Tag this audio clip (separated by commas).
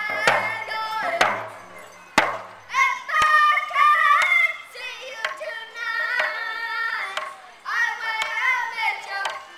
Speech, outside, urban or man-made, Music, Singing